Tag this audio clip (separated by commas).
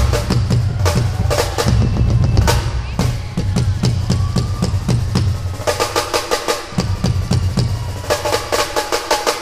Percussion, Music, Drum kit, Drum, Bass drum, Speech, Musical instrument